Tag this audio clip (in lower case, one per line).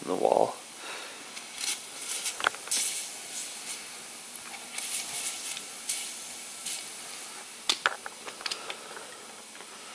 speech